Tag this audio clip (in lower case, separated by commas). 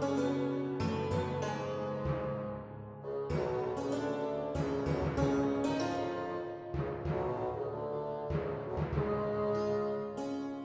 keyboard (musical)